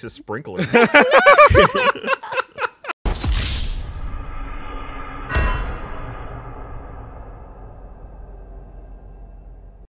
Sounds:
Giggle, Speech

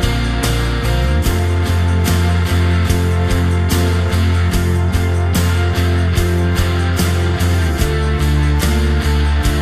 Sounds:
Music

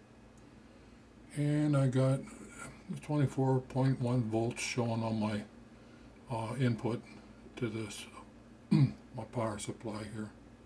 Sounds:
Speech

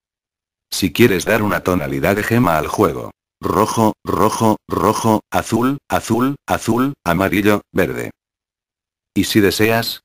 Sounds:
Speech

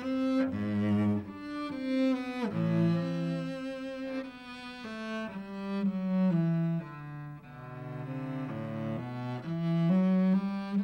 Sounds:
Cello, Double bass, Bowed string instrument

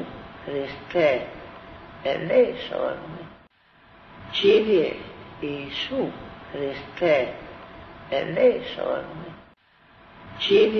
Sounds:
Speech

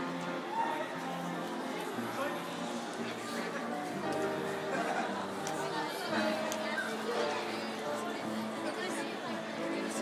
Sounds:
inside a public space, Speech, Crowd, Music

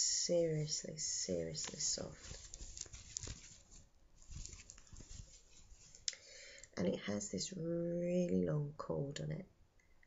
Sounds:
Speech, inside a small room

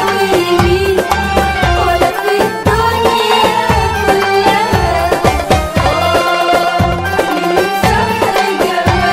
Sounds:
Happy music, Music, Folk music

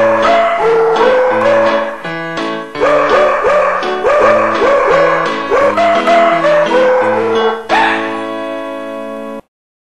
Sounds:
Music

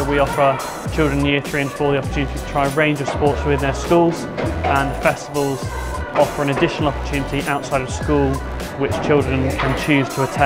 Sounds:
playing squash

